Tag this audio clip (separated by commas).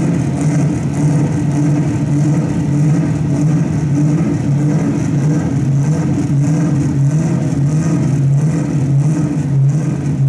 auto racing